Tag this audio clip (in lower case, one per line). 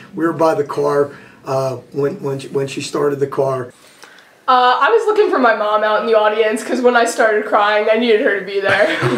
speech